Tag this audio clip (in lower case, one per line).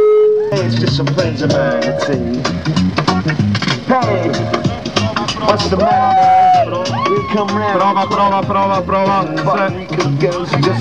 music
speech